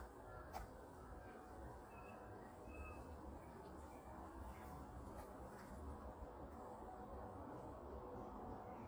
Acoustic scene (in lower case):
park